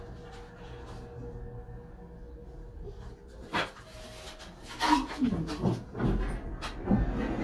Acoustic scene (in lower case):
elevator